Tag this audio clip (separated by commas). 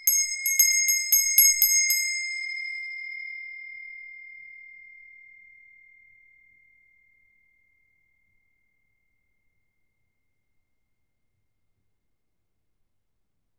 Bell